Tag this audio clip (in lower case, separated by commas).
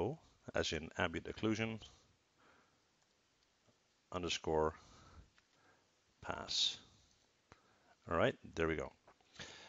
speech